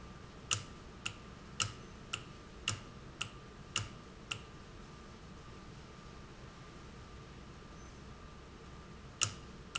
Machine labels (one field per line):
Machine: valve